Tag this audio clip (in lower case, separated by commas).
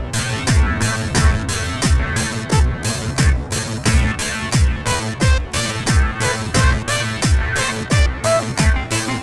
music